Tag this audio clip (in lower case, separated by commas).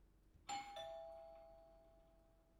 doorbell, home sounds, alarm, door